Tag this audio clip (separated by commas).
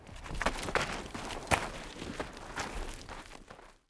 Run